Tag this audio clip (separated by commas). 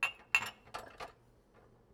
Domestic sounds, Chink, Glass, dishes, pots and pans